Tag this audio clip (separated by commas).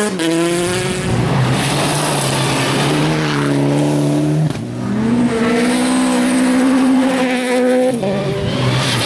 Tire squeal, Race car, Skidding, Car, Vehicle